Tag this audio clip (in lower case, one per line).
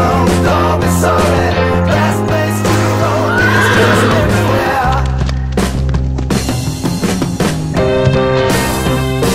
music